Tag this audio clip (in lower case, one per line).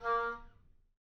music
woodwind instrument
musical instrument